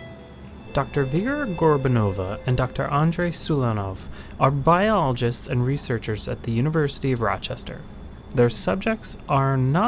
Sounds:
speech

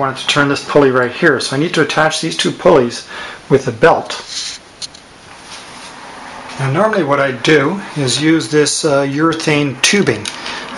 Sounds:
speech

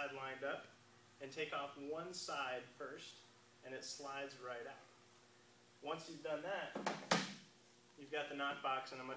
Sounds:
speech

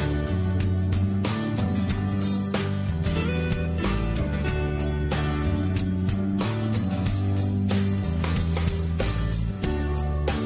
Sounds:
music

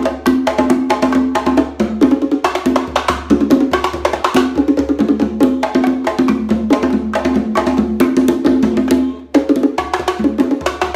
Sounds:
playing bongo

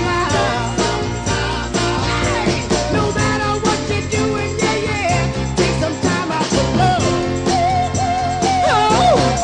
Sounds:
music, ska

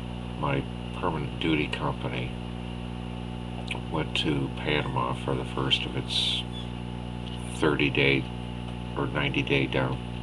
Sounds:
speech

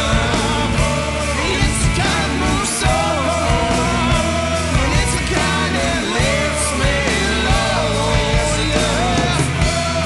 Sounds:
music, rock music, grunge

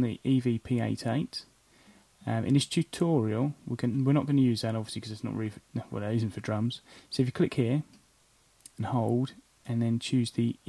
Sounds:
speech

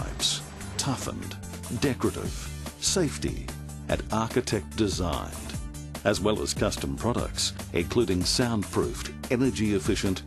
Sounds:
music, speech

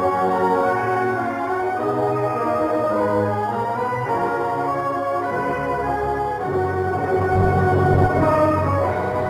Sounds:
music

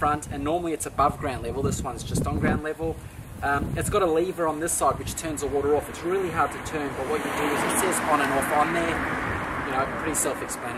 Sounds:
speech

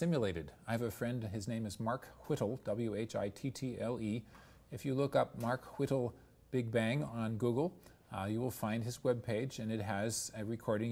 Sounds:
speech

